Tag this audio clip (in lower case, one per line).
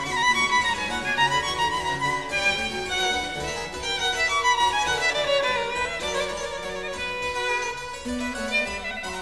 musical instrument
fiddle
music